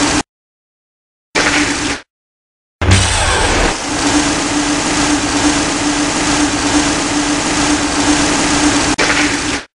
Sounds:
sound effect

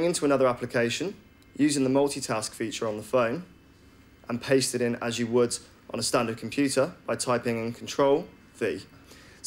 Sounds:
speech

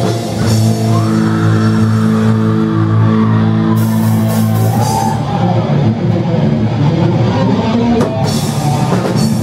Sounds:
music
inside a large room or hall
heavy metal
shout

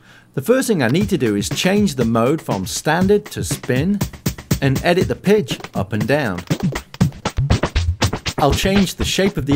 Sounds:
music
scratching (performance technique)
speech

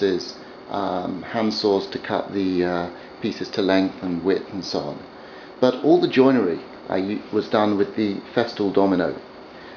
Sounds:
speech

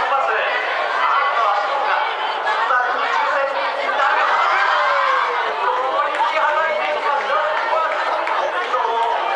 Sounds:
chatter
speech

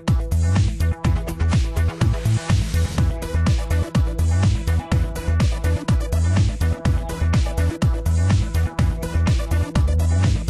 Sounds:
music

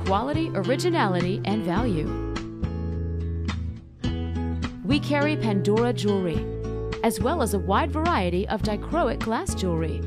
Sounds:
music
speech

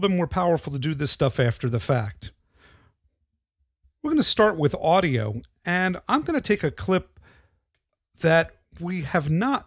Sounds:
speech

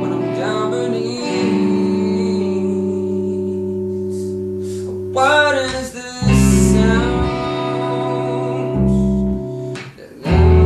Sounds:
music

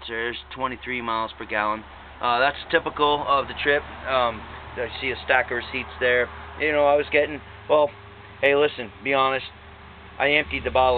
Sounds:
speech

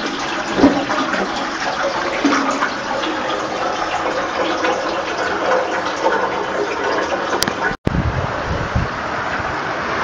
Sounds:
water
toilet flush
toilet flushing

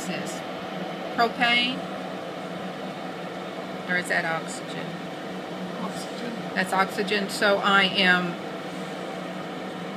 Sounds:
speech

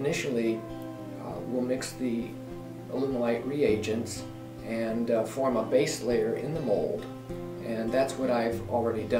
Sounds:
speech
music

